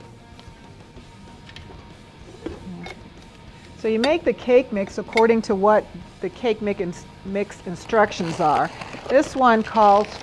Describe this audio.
A woman speaks, metal clinks